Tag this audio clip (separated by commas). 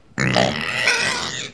livestock, Animal